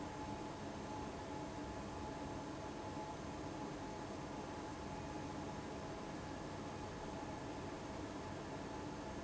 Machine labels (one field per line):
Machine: fan